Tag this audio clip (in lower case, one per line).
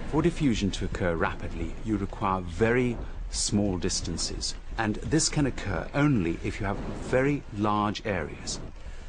snort
speech